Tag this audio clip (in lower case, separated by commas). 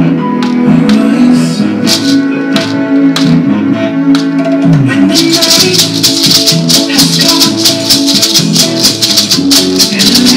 maraca, music